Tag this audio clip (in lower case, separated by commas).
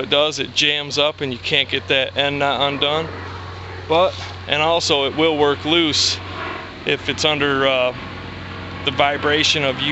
speech, vehicle, outside, rural or natural